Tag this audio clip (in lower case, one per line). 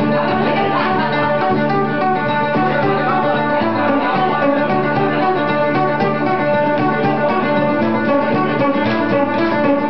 music